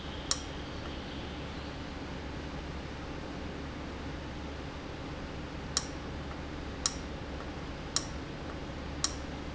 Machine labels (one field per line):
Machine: valve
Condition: abnormal